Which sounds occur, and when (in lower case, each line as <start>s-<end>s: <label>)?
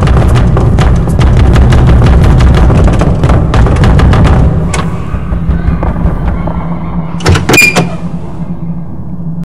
0.0s-4.4s: sound effect
0.0s-9.4s: music
0.0s-9.4s: video game sound
5.5s-7.1s: speech
5.8s-6.5s: footsteps
7.2s-7.8s: door